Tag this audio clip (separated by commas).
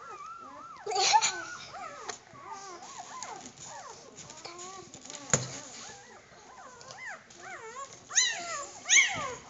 pets, Animal, chortle, Dog